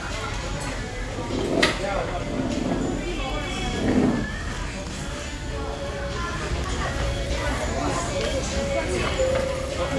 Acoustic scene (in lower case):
restaurant